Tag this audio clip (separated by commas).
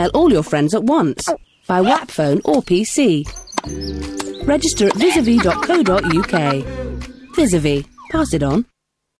Music, Speech